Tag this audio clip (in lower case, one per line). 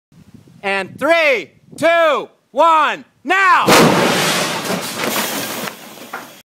speech
explosion